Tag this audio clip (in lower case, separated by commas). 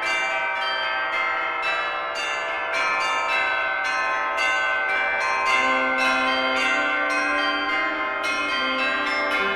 change ringing (campanology), tubular bells